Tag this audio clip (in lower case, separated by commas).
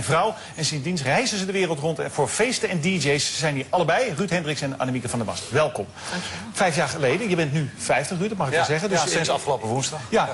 speech